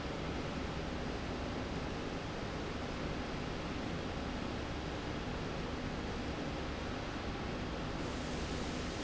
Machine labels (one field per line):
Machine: slide rail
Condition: normal